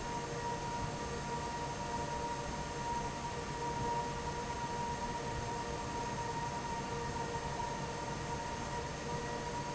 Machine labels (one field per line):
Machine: fan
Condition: normal